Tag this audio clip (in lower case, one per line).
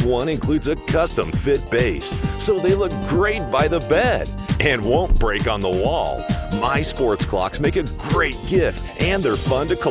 music
speech